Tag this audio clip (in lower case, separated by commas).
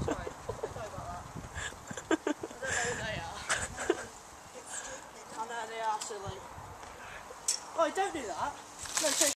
speech